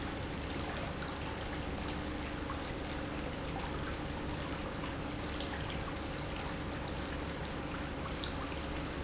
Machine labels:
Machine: pump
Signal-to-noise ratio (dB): -6 dB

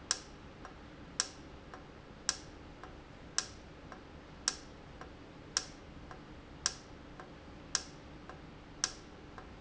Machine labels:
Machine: valve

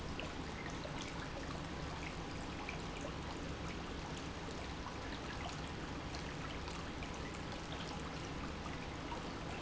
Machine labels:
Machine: pump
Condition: normal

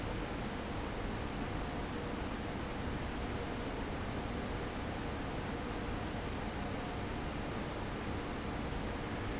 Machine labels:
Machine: fan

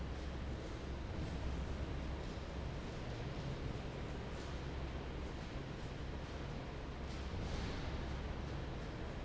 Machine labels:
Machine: fan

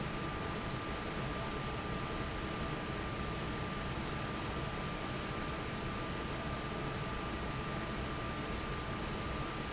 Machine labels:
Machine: fan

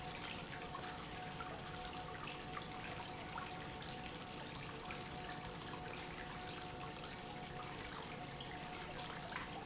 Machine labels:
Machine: pump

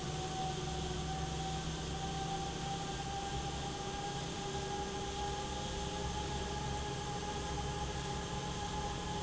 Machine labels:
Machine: fan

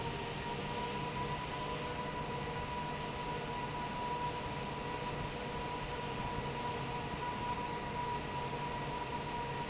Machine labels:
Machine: fan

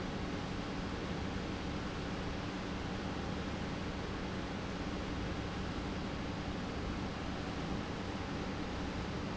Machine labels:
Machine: pump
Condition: normal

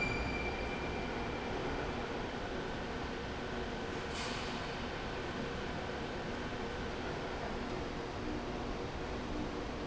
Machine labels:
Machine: fan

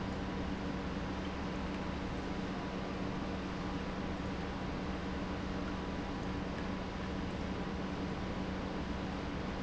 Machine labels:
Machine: pump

